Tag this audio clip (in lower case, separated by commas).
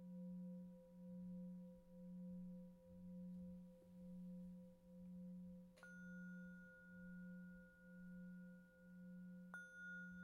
singing bowl